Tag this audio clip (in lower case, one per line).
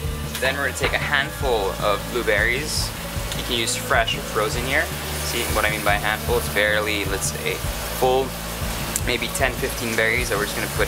speech
music